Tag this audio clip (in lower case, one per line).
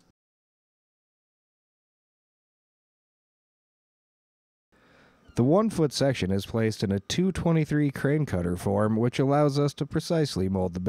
speech